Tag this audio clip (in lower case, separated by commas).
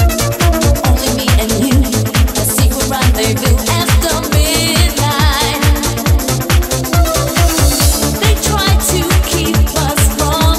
music